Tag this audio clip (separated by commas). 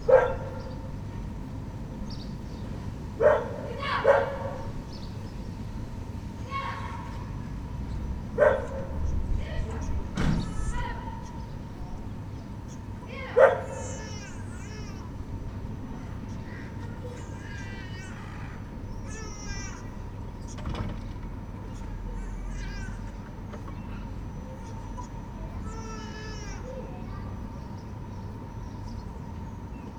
Bark, pets, Animal, Dog